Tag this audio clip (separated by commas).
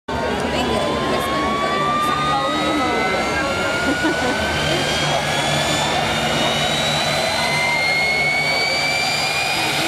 Aircraft, Vehicle